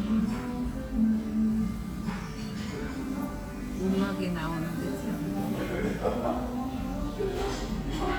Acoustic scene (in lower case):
restaurant